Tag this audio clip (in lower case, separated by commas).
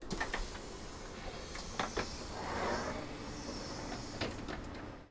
train, vehicle, domestic sounds, sliding door, rail transport, door